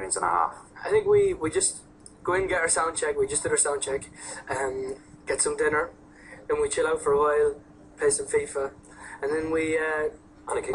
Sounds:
speech

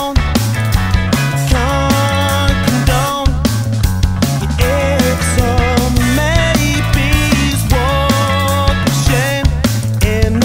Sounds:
music, drum, drum kit, musical instrument, rhythm and blues

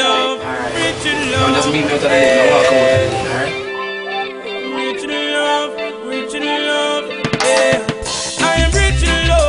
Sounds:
speech, soundtrack music, music

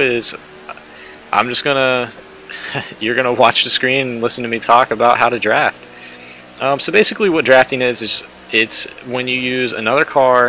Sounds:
speech

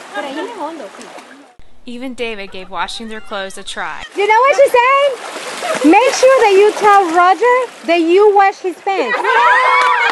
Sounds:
splashing water, speech, splash

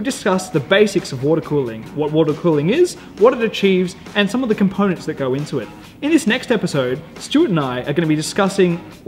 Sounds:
music, speech

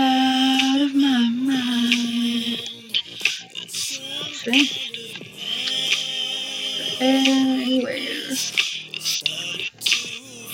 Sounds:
inside a small room, music

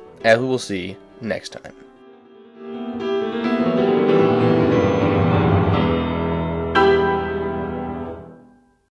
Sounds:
piano, music, speech

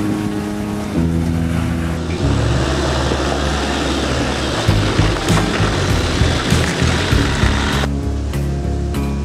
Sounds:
music, vehicle, car

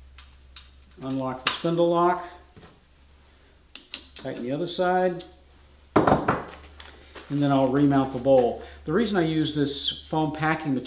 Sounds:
speech

